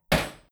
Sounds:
Hammer, Tools

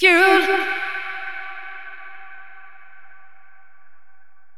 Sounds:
Human voice, Singing

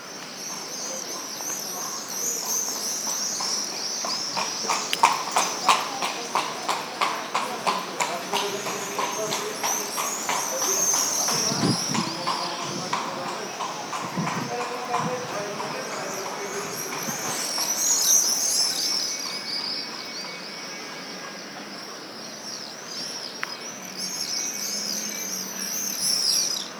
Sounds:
Animal, livestock

